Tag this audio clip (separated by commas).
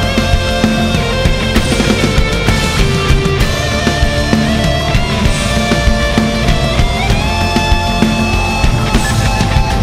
Heavy metal, Music